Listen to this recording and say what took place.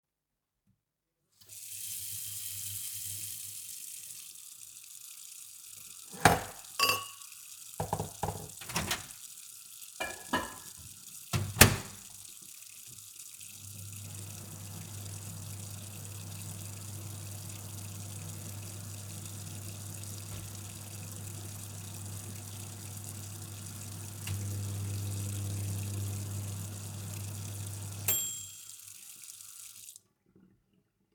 I turned on the tap to wash a plate. While the water was running, I placed some cutlery into the sink. I then turned off the tap and started the microwave.